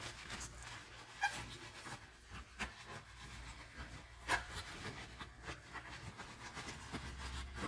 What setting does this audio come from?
kitchen